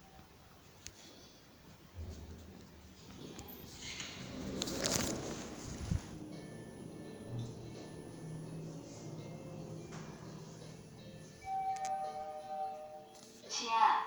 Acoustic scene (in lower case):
elevator